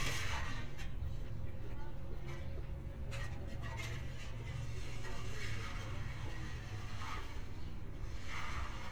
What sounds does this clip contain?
background noise